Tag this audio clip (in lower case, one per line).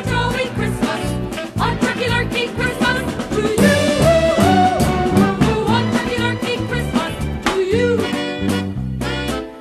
music